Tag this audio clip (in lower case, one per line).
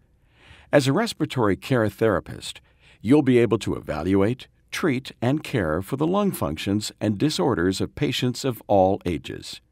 speech synthesizer
speech